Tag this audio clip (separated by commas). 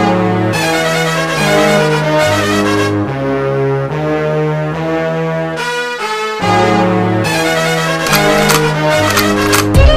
Musical instrument, Music, fiddle